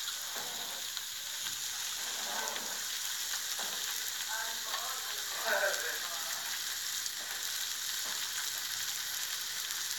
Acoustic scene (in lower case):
restaurant